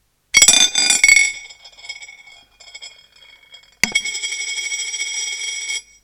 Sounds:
domestic sounds, coin (dropping)

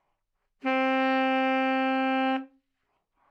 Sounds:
wind instrument, music, musical instrument

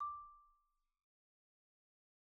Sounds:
mallet percussion, percussion, musical instrument, music, xylophone

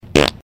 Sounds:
fart

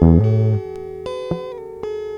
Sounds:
musical instrument, plucked string instrument, guitar, music

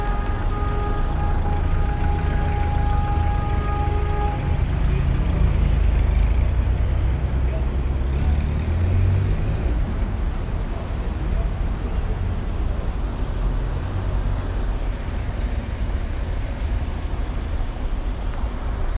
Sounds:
traffic noise, motor vehicle (road), vehicle

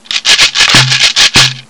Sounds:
percussion, music, musical instrument, rattle (instrument)

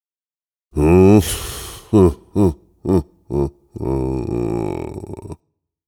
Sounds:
laughter, human voice

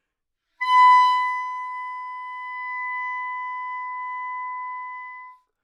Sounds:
music, musical instrument, woodwind instrument

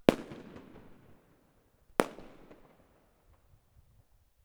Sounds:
fireworks, explosion

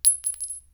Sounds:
glass, chink

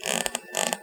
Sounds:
squeak

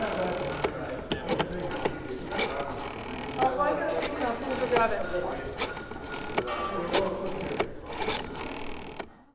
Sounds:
telephone, alarm

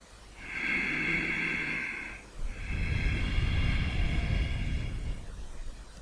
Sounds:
breathing, respiratory sounds

